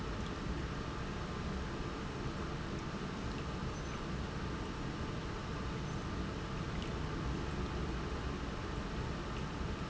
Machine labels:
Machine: pump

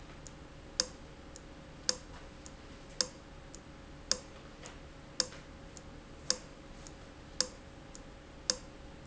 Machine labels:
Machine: valve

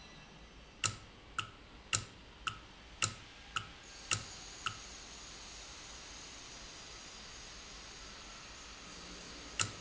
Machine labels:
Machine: valve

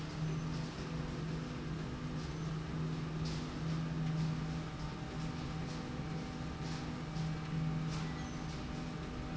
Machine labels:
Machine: slide rail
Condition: normal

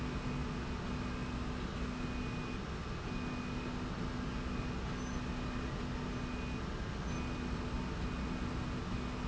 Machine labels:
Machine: slide rail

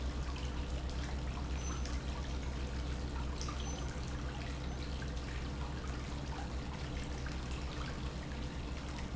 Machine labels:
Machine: pump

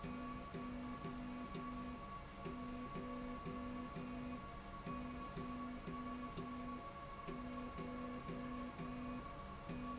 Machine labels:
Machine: slide rail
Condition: normal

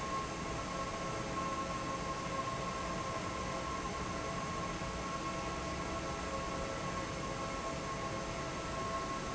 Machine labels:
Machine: fan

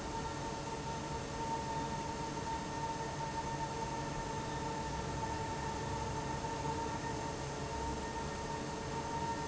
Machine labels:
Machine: fan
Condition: abnormal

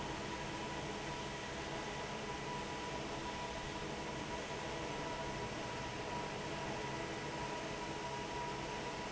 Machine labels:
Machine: fan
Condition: normal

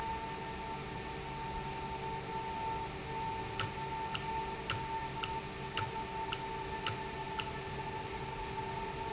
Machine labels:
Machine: valve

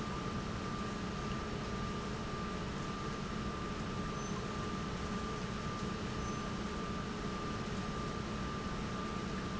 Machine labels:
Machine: pump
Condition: normal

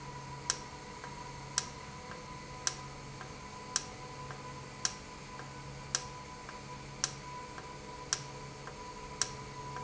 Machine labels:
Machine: valve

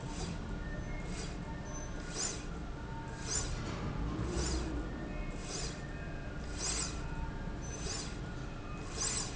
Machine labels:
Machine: slide rail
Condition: normal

